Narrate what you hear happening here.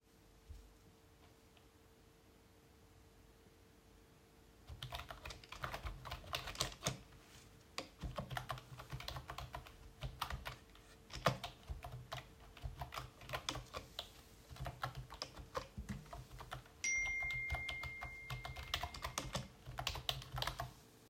I typed on the keyboard. While I was still typing, a notification sound went off.